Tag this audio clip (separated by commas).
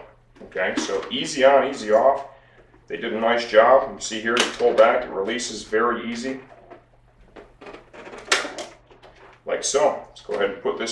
Speech